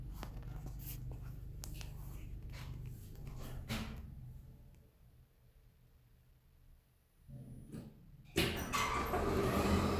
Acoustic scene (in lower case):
elevator